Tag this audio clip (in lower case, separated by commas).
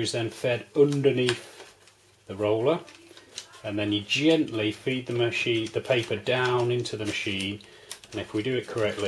speech